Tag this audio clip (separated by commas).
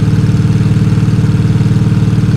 Vehicle, Engine, Car, Truck, Motor vehicle (road)